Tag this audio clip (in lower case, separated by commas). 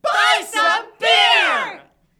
human voice, human group actions, shout